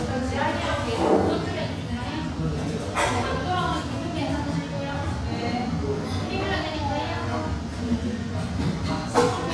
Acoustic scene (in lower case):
cafe